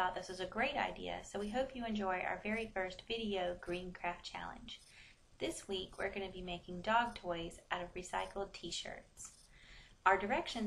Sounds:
Speech

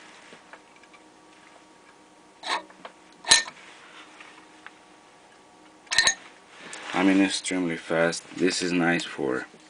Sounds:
Speech

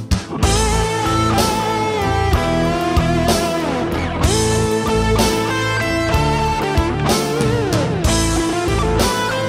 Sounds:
Music

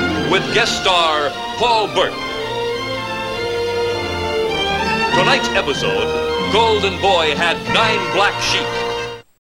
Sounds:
Music, Speech

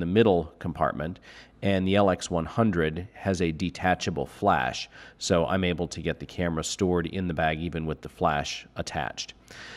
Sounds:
Speech

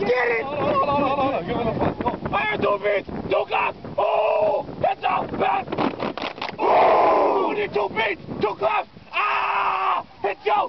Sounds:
Speech

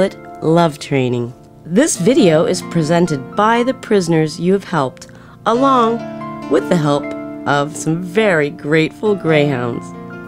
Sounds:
Music, Speech

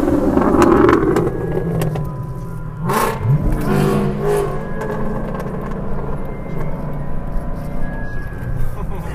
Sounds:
Car, outside, rural or natural, Music, Vehicle

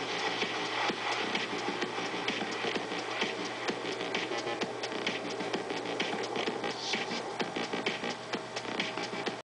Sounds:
Music

